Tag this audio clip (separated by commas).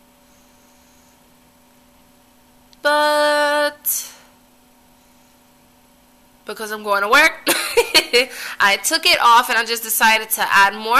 Speech, inside a small room